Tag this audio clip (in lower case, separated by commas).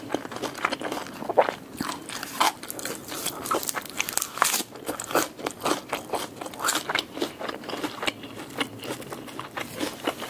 people eating crisps